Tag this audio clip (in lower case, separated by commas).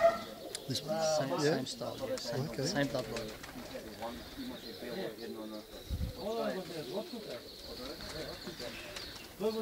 outside, rural or natural, speech, bird, pigeon